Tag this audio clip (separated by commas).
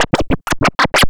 Musical instrument, Music, Scratching (performance technique)